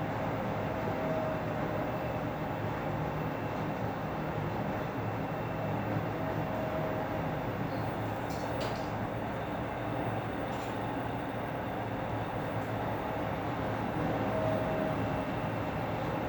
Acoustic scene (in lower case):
elevator